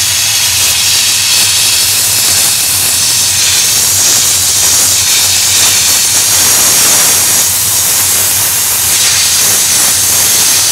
Water runs from a faucet so aggressively that it makes a hiss into a metal container